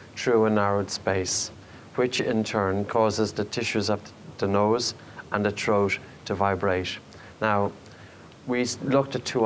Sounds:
speech

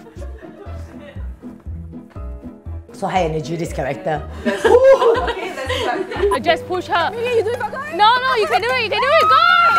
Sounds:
inside a small room, speech, music

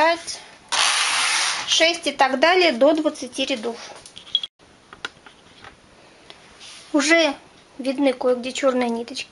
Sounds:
speech

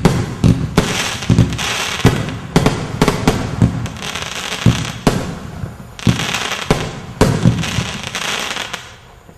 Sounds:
fireworks

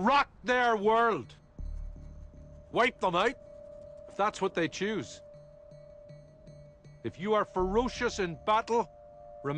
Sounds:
monologue, man speaking, music, speech

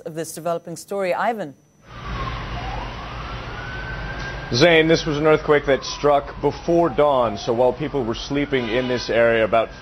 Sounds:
speech

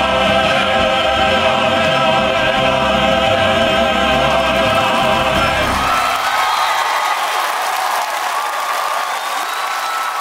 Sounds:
singing choir

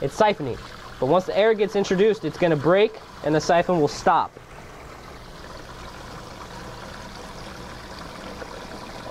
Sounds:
speech

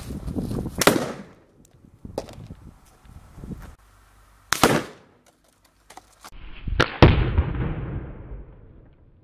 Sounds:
firecracker, outside, rural or natural, explosion

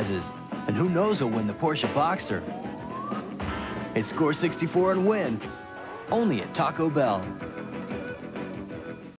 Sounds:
speech, music

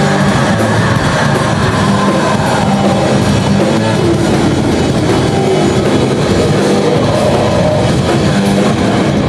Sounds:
music

